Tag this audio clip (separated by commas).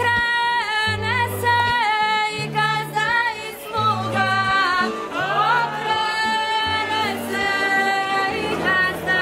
Music